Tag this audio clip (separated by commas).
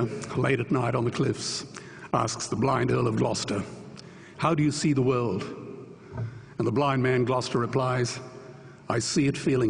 Narration, Speech, man speaking